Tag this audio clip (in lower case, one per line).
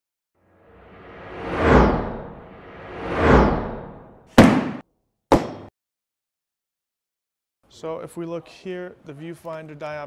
speech